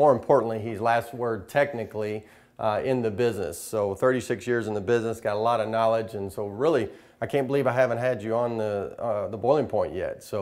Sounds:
Speech

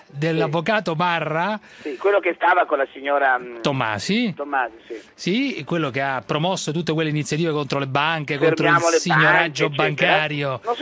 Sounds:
Speech

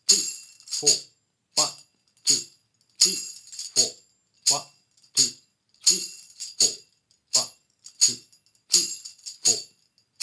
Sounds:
playing tambourine

